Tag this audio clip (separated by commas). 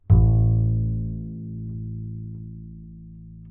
Musical instrument, Music, Bowed string instrument